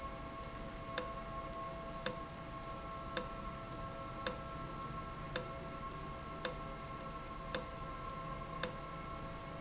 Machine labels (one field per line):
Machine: valve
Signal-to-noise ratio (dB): 0 dB